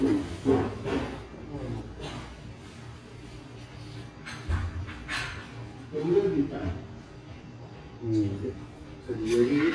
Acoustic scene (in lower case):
restaurant